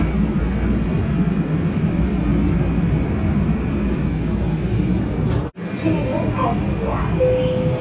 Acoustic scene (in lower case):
subway train